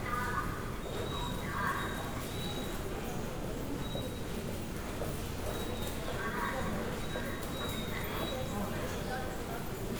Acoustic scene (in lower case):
subway station